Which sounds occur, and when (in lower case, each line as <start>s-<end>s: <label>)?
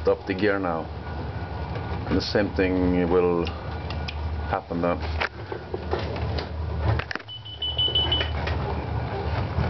0.0s-0.8s: male speech
0.0s-9.6s: aircraft
1.7s-2.1s: generic impact sounds
2.1s-3.5s: male speech
3.4s-3.5s: tick
3.8s-4.1s: tick
4.5s-5.1s: male speech
5.2s-5.3s: generic impact sounds
5.5s-5.6s: tap
5.7s-5.8s: tap
5.9s-6.2s: generic impact sounds
6.3s-6.4s: tick
6.9s-7.2s: generic impact sounds
7.3s-8.3s: bleep
8.2s-8.3s: tick
8.4s-8.5s: tick
8.6s-8.8s: brief tone
8.6s-8.8s: tap
9.1s-9.3s: brief tone
9.3s-9.6s: generic impact sounds